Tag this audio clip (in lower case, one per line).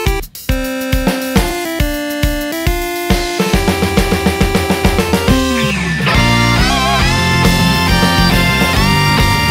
music